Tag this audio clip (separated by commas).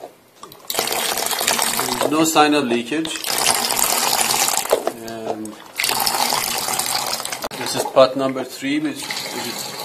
Speech